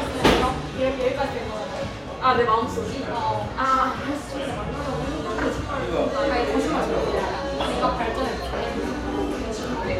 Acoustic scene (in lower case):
cafe